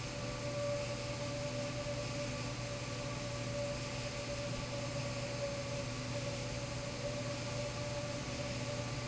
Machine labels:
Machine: fan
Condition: abnormal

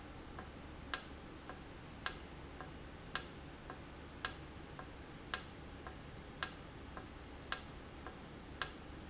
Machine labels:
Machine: valve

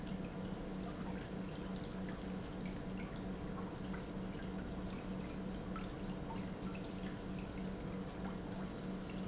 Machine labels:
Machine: pump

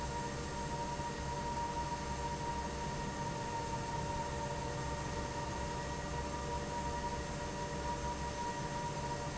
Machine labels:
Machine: fan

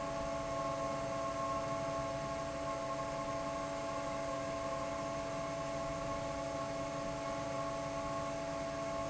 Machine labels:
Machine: fan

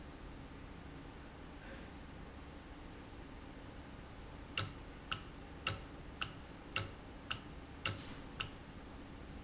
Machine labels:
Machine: valve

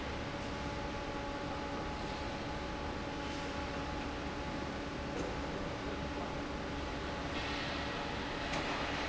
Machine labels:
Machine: fan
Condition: normal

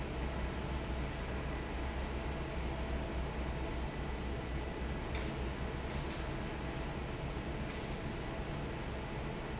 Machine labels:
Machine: fan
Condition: normal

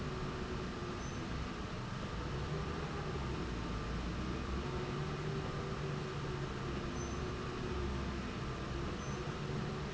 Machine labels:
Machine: slide rail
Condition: normal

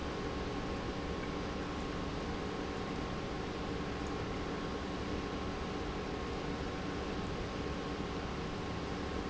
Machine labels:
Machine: pump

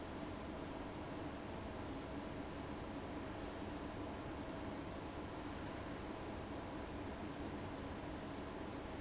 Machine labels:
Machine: fan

